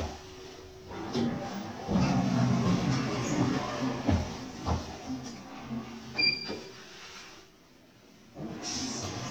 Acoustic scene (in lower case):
elevator